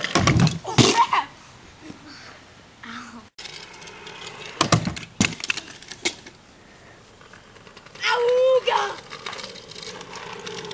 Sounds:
speech, outside, rural or natural

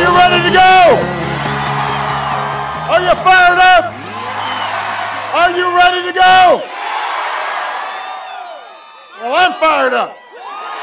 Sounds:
speech, music, male speech

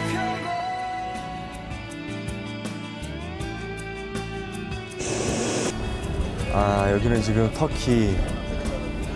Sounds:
music, speech

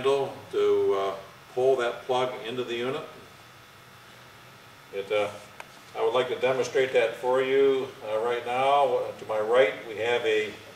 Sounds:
speech

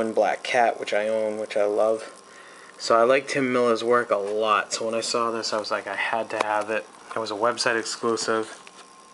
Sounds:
speech, inside a small room

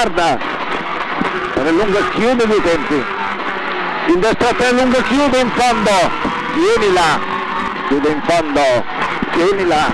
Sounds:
car, speech, vehicle

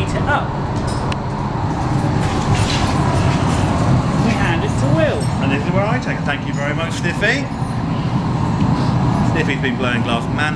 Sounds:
clink, speech

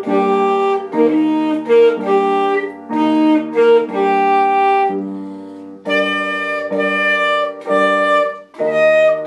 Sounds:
playing saxophone

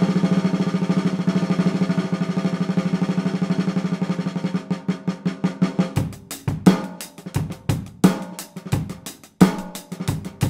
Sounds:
drum roll, percussion, drum, rimshot, snare drum, bass drum, playing snare drum

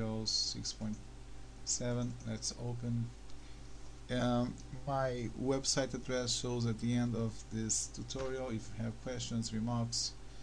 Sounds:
speech

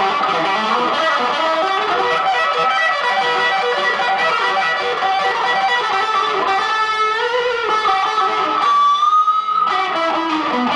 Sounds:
music

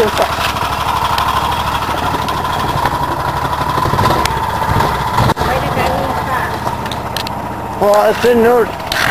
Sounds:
speech, car, vehicle

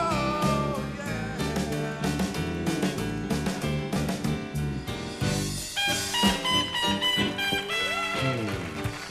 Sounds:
jazz, music, bowed string instrument, musical instrument

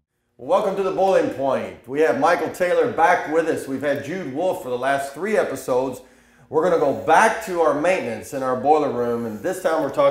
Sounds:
speech

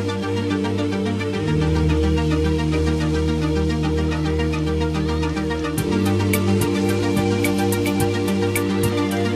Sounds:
music

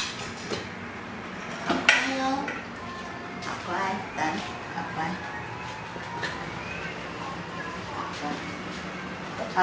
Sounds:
speech

